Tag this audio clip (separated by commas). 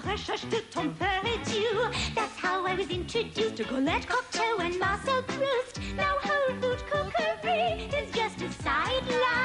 Music